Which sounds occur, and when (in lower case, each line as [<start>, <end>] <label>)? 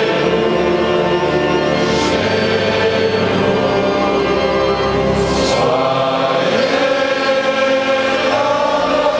[0.00, 9.15] choir
[0.00, 9.15] music